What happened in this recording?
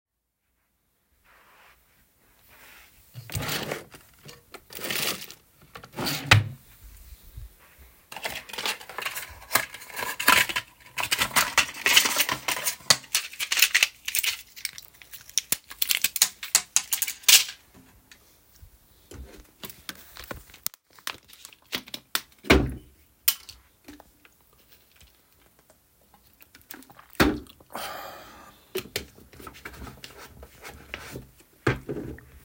I opened the drawer and close it, I grabbed a carton pack of medication, took a blister pack, push the pill, it falled on the table, then I graped a bottle of water, unscrew the cap, drink and screw it again.